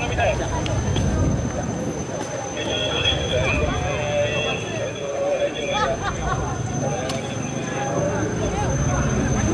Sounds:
Speech

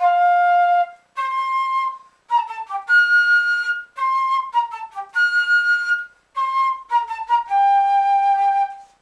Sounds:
Flute, Music, Musical instrument, Wind instrument

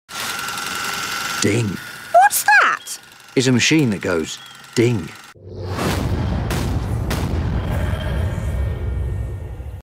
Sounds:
Speech

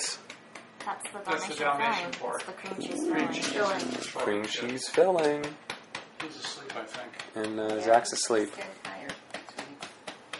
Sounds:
Speech

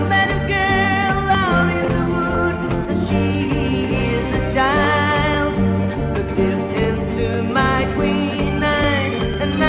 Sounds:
Music

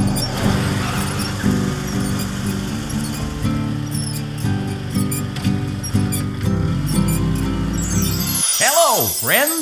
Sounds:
Music, Speech

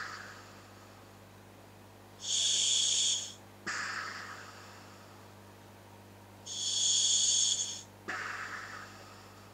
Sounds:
inside a small room

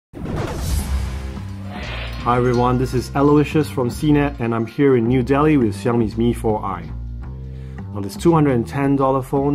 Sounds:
Speech

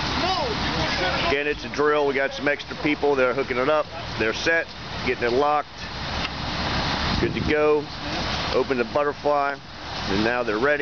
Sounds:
Speech

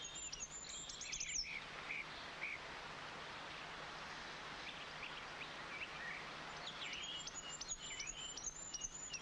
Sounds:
tweet, outside, rural or natural

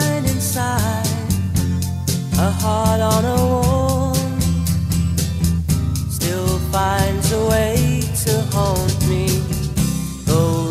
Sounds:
Music, Singing

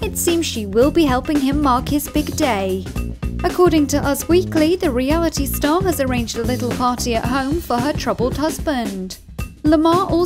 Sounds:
Speech, Music

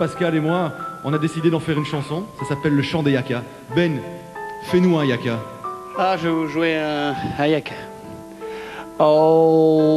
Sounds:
Speech, Music

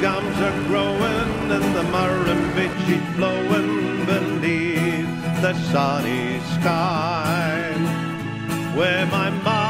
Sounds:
Vehicle, Music, Bicycle

